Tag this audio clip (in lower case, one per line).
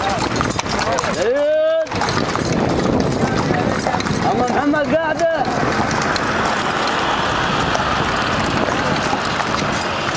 clip-clop
animal
speech
horse